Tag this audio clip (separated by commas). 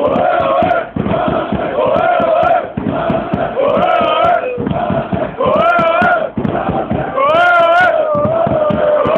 Music, Speech